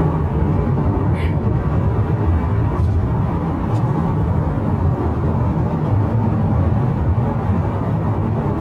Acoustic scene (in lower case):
car